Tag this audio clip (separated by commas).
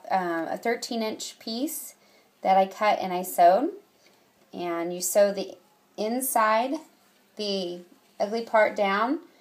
Speech